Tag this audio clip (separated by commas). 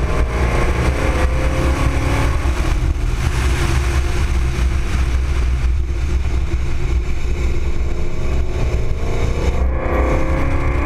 Car, Motor vehicle (road), Vehicle